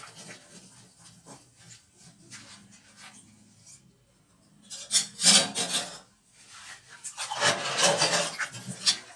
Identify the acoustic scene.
kitchen